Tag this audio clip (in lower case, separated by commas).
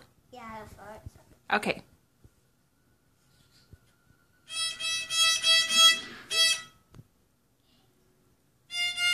speech, music, musical instrument, fiddle